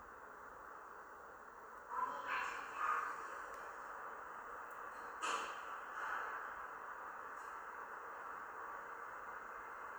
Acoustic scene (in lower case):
elevator